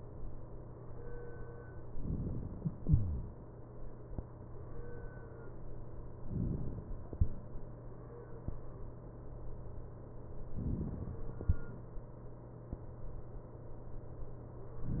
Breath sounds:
1.94-2.84 s: inhalation
6.24-7.14 s: inhalation
10.54-11.44 s: inhalation

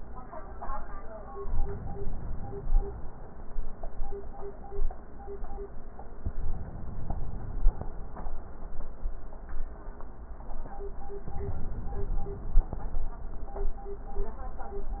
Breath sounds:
1.48-2.98 s: inhalation
6.37-7.87 s: inhalation
11.26-12.76 s: inhalation

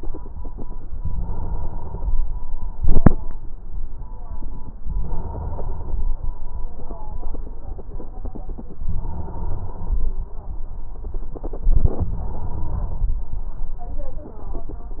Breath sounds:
0.97-2.13 s: inhalation
4.88-6.03 s: inhalation
8.87-10.03 s: inhalation
12.03-13.19 s: inhalation

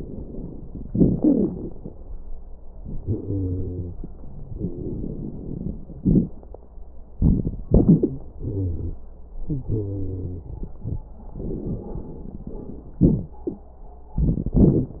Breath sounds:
0.84-1.69 s: exhalation
0.84-1.69 s: crackles
2.80-3.98 s: inhalation
2.80-3.98 s: wheeze
4.46-4.97 s: wheeze
4.49-5.78 s: exhalation
5.99-6.32 s: crackles
6.00-6.36 s: inhalation
7.19-7.68 s: exhalation
7.70-8.28 s: inhalation
7.70-8.28 s: wheeze
8.42-9.00 s: exhalation
8.47-8.97 s: wheeze
9.47-10.53 s: wheeze
9.48-11.06 s: inhalation
11.37-12.99 s: exhalation
11.37-12.99 s: crackles
13.01-13.39 s: inhalation
13.01-13.39 s: wheeze
14.15-15.00 s: crackles
14.17-14.61 s: exhalation
14.58-15.00 s: inhalation

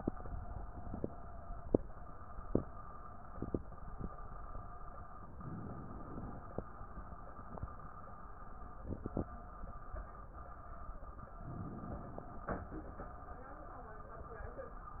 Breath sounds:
5.27-6.68 s: inhalation
11.29-12.70 s: inhalation

